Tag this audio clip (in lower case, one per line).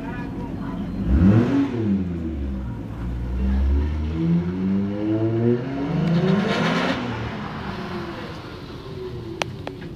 speech